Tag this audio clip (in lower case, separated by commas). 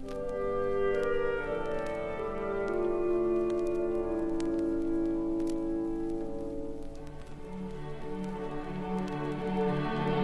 orchestra, music